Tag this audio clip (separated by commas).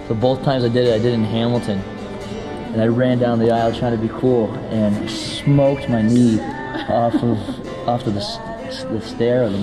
Music, inside a large room or hall, Singing, Speech